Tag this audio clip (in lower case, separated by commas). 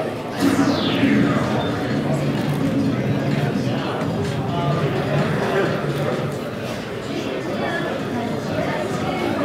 speech